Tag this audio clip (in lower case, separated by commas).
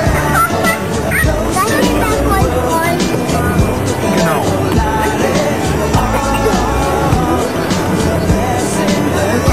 music, speech